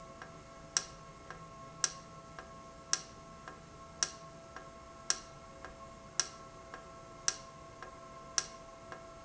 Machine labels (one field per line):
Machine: valve